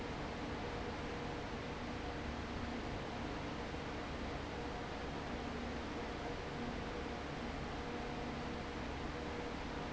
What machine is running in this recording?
fan